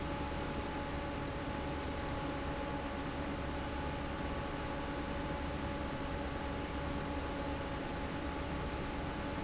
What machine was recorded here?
fan